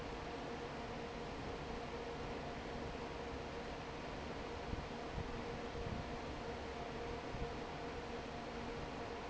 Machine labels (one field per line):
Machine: fan